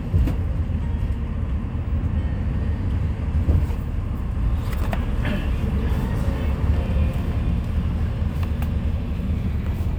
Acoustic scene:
bus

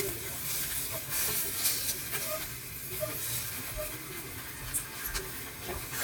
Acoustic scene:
kitchen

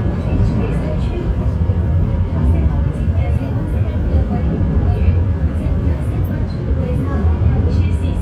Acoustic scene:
subway train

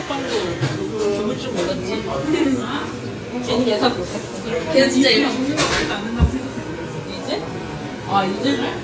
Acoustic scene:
restaurant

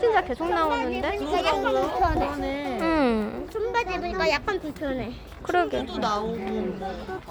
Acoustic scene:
park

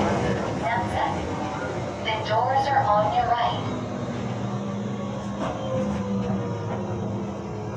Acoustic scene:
subway train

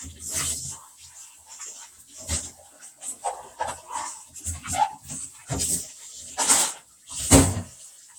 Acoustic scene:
restroom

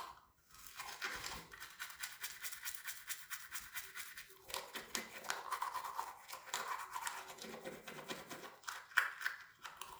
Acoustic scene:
restroom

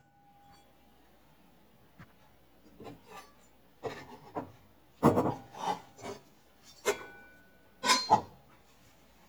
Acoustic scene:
kitchen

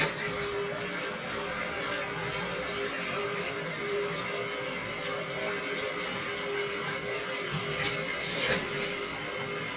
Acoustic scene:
restroom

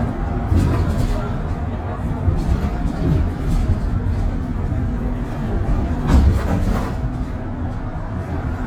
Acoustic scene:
bus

